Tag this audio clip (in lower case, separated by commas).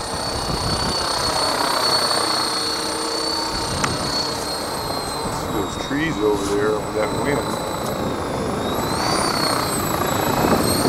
helicopter, speech